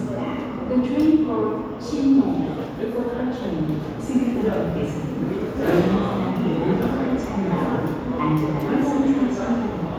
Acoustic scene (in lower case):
subway station